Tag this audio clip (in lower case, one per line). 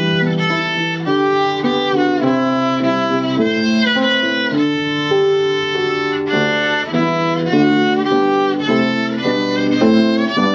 violin
music
musical instrument